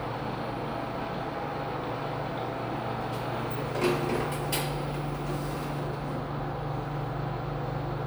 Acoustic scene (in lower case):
elevator